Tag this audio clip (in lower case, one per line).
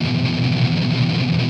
music
strum
guitar
musical instrument
plucked string instrument